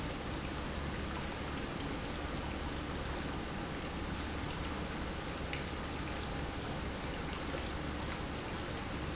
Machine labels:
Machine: pump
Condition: normal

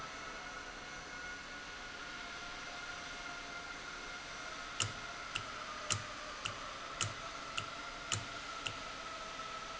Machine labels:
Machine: valve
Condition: normal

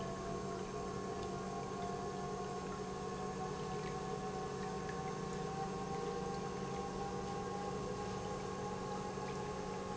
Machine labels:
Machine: pump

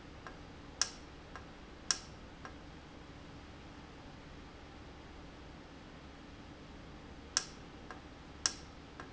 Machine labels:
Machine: valve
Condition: normal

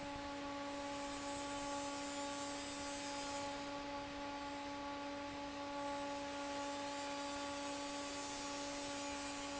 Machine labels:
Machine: fan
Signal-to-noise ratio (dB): 6 dB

